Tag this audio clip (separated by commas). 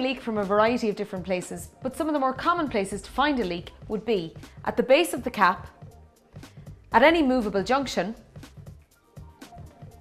Music, Speech